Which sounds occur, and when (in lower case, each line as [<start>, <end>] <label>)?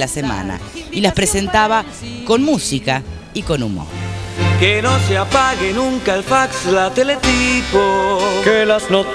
[0.01, 0.83] male speech
[0.01, 9.14] music
[0.12, 2.99] female singing
[0.91, 1.82] male speech
[2.24, 2.95] male speech
[3.26, 3.79] male speech
[4.32, 9.14] male singing